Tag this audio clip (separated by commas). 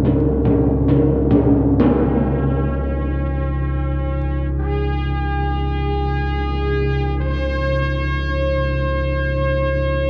Music